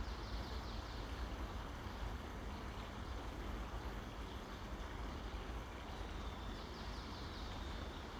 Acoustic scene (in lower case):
park